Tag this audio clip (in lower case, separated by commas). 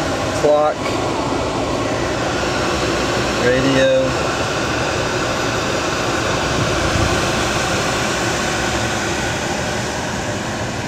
vehicle, car, speech